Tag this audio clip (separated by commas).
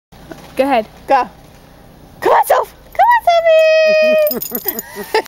Speech